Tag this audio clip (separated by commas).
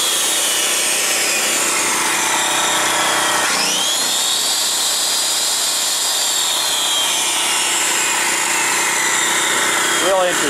Speech, Tools